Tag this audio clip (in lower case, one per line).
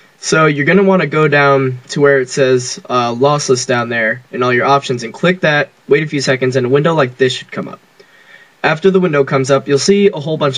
speech